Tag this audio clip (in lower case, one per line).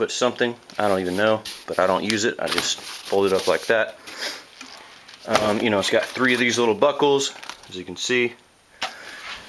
speech
inside a small room